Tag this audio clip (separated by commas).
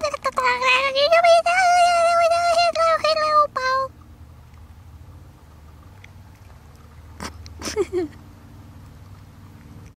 Speech